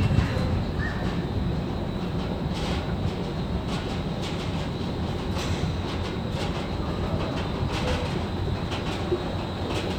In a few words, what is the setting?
subway station